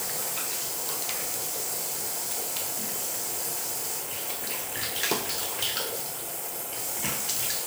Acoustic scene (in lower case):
restroom